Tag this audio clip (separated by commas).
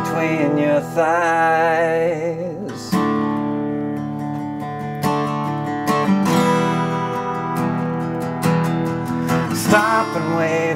Strum, Musical instrument, Music, Plucked string instrument, Guitar